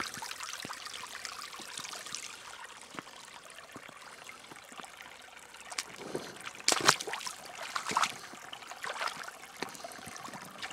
Water is heard thinly running with some splashing going on